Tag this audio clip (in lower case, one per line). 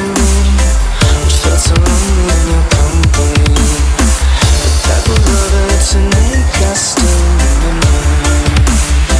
dubstep
electronic music
music